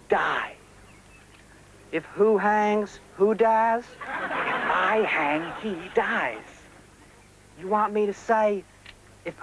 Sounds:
speech

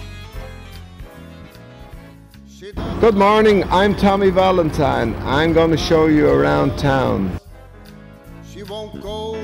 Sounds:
music, speech, male singing

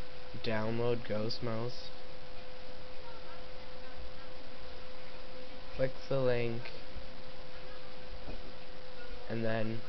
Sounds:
speech

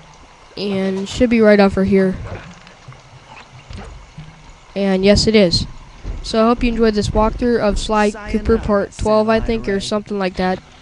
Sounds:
speech

